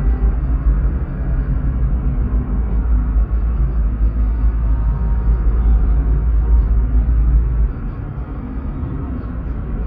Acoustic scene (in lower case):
car